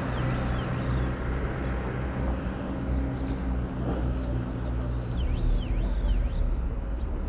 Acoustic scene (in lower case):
street